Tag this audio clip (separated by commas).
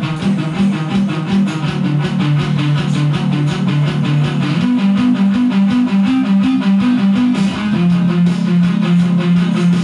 Strum, Guitar, Musical instrument, Music, Plucked string instrument